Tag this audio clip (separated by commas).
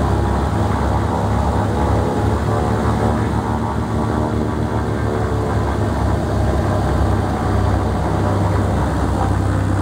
outside, rural or natural, Aircraft, Vehicle